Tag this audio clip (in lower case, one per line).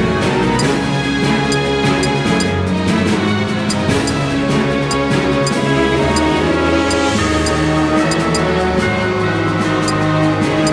music